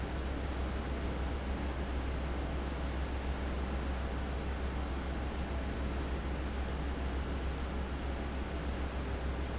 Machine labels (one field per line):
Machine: fan